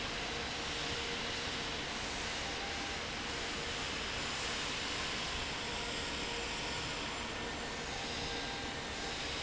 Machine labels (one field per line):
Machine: fan